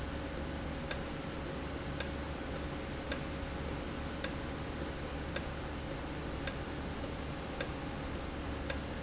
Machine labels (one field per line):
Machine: valve